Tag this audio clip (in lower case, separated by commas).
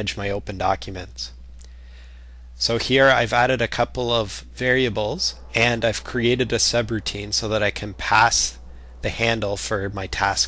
speech